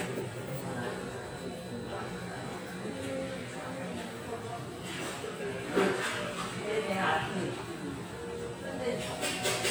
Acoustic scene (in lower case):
restaurant